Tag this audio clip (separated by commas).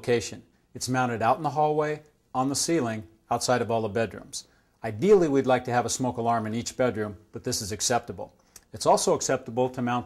Speech